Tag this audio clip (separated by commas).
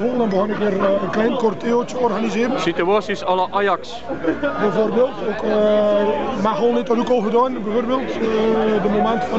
Speech